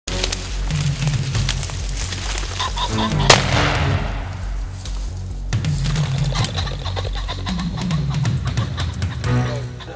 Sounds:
music

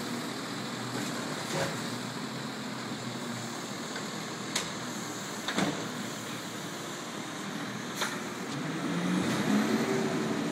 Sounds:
vehicle
truck

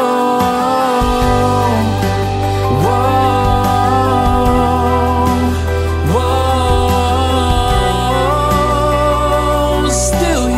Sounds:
music

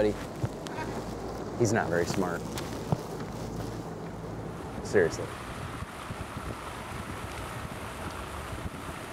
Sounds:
vehicle
speech

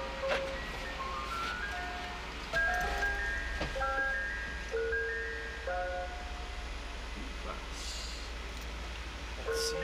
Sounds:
ice cream truck

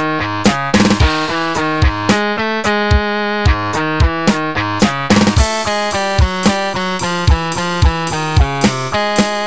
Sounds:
music
rhythm and blues

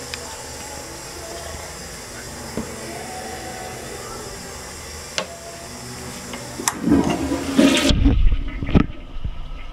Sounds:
toilet flush
toilet flushing
music

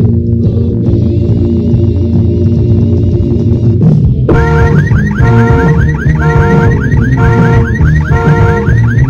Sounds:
music

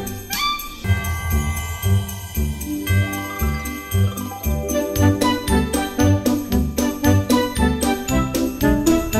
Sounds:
tinkle

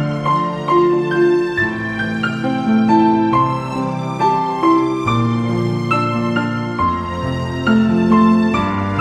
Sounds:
music

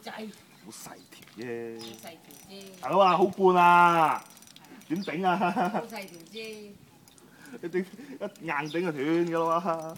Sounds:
speech

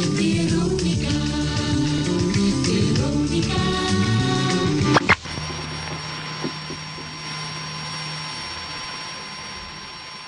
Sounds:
music

